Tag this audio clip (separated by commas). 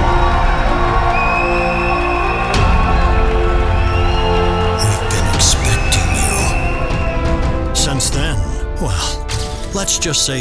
Speech, Music